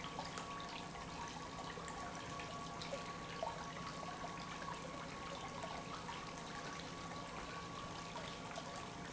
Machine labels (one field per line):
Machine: pump